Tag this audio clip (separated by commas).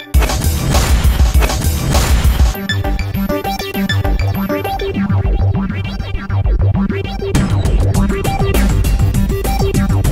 Electronica, Electronic dance music, Music, Electronic music